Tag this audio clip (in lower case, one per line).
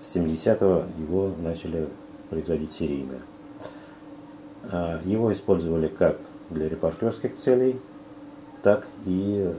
speech